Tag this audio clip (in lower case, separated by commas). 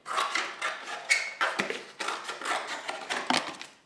scissors, home sounds